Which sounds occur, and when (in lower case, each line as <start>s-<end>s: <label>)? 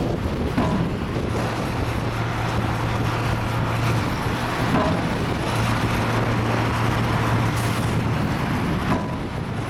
0.0s-9.6s: heavy engine (low frequency)
0.5s-0.9s: thunk
4.7s-5.0s: thunk
8.8s-9.2s: thunk